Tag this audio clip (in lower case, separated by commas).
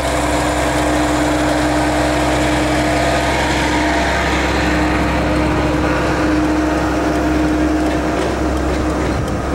vehicle, truck